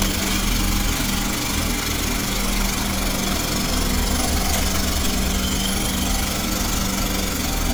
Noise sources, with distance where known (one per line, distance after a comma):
jackhammer, near